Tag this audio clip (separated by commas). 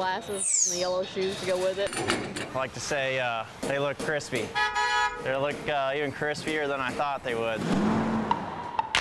Speech, Music